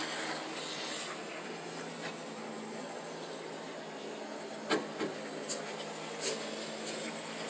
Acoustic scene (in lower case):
residential area